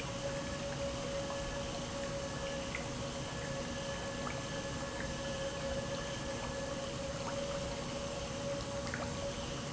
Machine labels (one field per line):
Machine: pump